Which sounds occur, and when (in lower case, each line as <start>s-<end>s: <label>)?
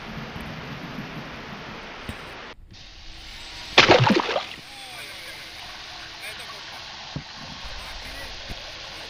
0.0s-9.0s: ocean
0.0s-9.0s: ship
0.0s-9.0s: wind
2.1s-2.1s: tick
3.8s-4.7s: splash
4.7s-5.6s: man speaking
6.0s-6.6s: man speaking
7.1s-7.2s: tick
7.7s-8.3s: man speaking
8.5s-8.6s: tick